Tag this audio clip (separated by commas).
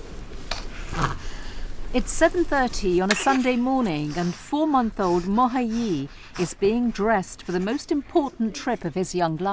Speech